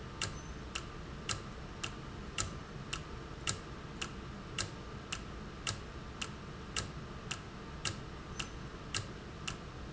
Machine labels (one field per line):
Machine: valve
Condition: normal